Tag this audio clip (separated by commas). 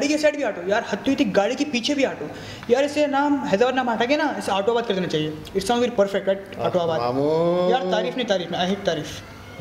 Speech